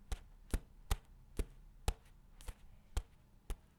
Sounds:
Walk

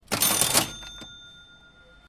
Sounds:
Mechanisms

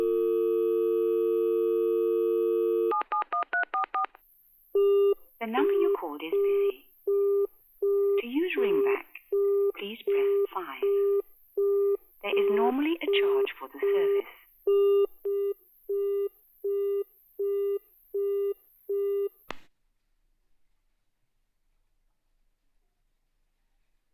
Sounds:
Alarm, Telephone

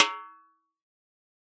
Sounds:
Snare drum, Drum, Musical instrument, Percussion, Music

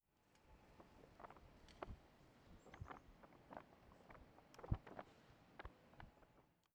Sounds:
Wind

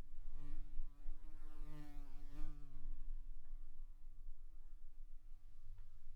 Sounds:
Buzz, Insect, Wild animals, Animal

